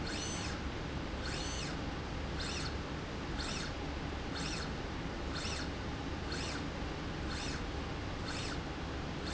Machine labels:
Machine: slide rail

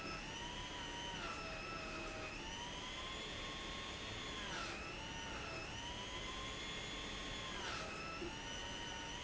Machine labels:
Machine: pump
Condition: abnormal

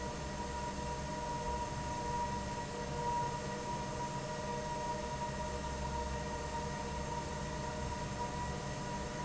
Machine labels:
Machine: fan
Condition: normal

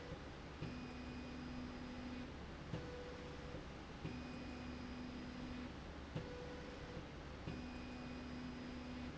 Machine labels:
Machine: slide rail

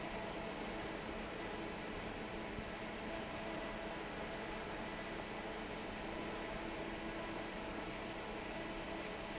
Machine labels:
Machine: fan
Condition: normal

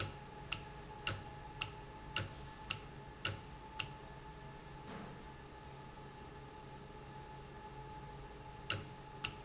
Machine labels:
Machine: valve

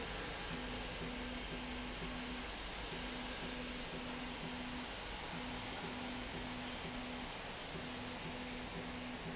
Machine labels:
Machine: slide rail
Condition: normal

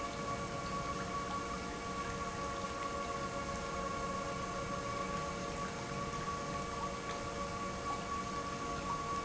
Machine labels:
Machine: pump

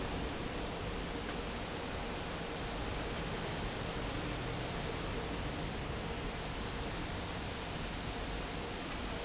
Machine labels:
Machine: fan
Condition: normal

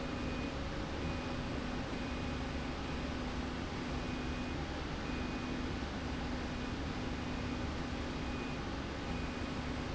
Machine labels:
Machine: slide rail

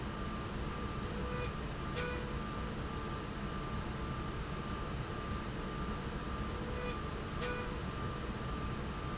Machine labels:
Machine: slide rail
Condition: normal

